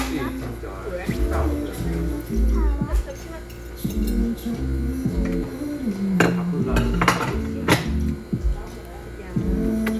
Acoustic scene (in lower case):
restaurant